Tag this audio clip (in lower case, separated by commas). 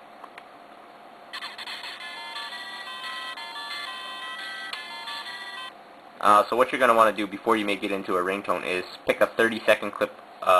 music, speech